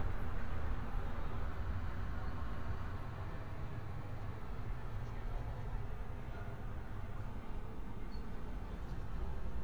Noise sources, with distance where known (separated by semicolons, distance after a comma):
person or small group talking, far